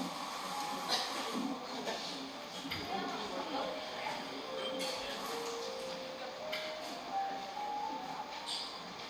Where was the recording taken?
in a cafe